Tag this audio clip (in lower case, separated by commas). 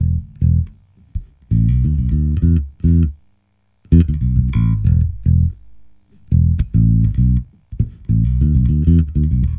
music, guitar, plucked string instrument, musical instrument, bass guitar